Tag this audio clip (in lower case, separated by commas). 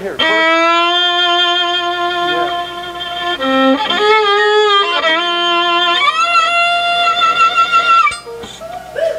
inside a public space, music, speech